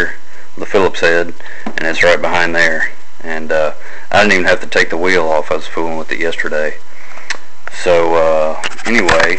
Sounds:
Speech

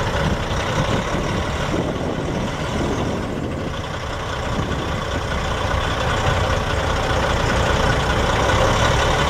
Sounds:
Vehicle, Truck

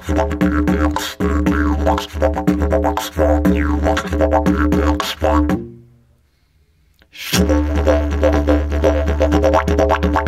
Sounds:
Music, Didgeridoo

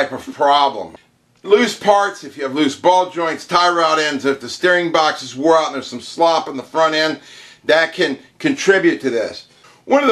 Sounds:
Speech

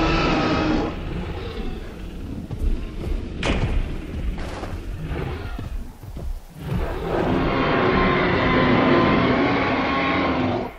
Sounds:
dinosaurs bellowing

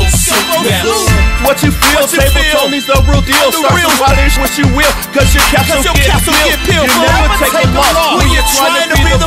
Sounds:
Music, Blues

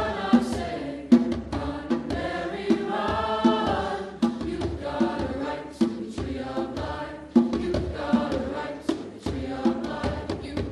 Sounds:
Choir, Music

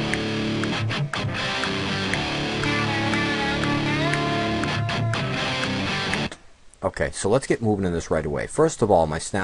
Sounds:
Musical instrument, Music, Speech

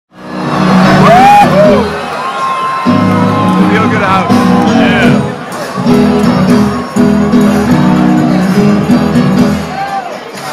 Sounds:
inside a large room or hall, Speech, Music

